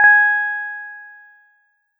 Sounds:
music
musical instrument
keyboard (musical)
piano

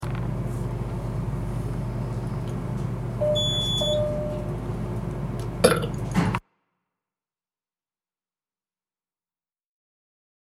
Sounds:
eructation

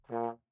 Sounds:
musical instrument
brass instrument
music

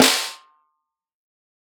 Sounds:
musical instrument
snare drum
music
drum
percussion

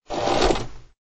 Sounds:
mechanisms

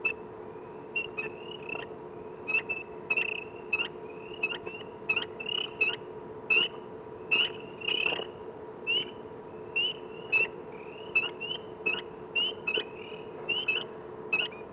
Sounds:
animal
wild animals
idling
engine

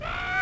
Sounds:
bird
animal
wild animals

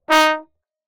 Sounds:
music
musical instrument
brass instrument

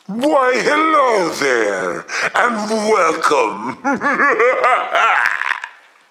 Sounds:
laughter
human voice

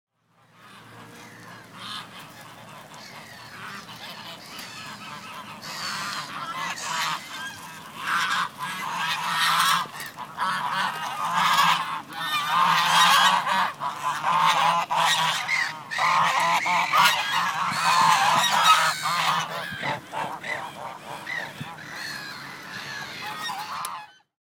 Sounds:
animal
livestock
fowl

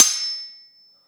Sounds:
home sounds
cutlery

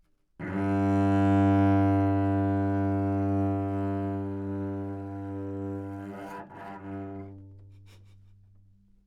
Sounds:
bowed string instrument
musical instrument
music

